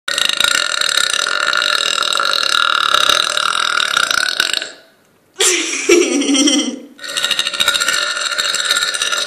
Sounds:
eructation, people burping

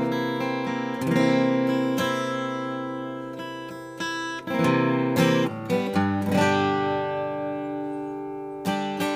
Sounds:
guitar, musical instrument, strum, acoustic guitar, plucked string instrument, music

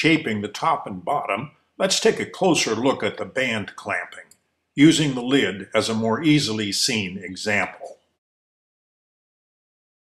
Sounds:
speech

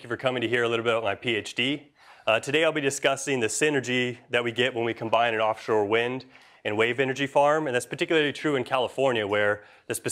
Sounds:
speech

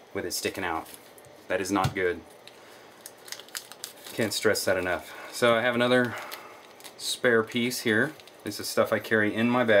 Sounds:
speech

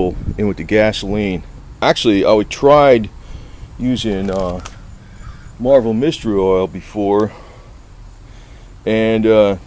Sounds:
speech

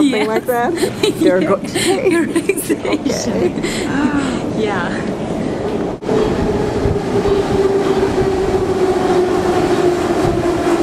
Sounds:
train, railroad car, subway, rail transport

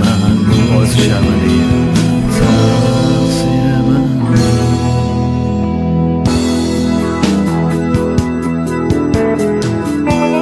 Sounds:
singing, music, independent music

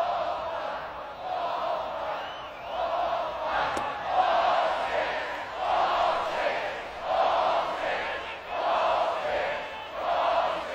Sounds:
speech

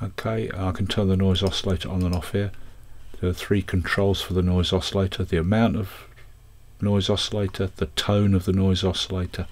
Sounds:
speech

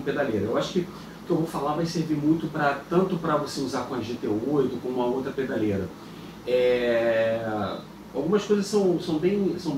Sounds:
speech

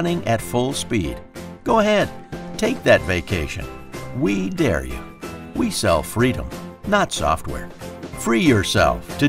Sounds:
speech, music

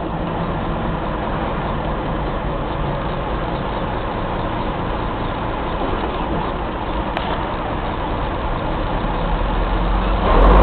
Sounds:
vehicle, medium engine (mid frequency), engine

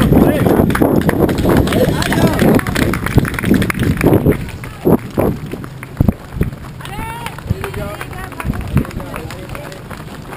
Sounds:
speech, outside, rural or natural, people running, run

